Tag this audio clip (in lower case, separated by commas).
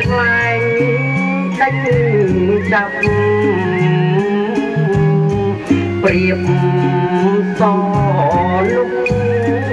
traditional music, music